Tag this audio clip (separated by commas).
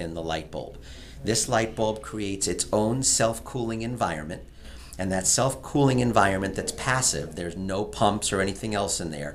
Speech